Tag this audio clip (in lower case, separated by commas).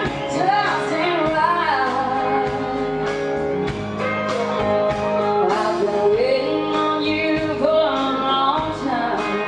female singing, music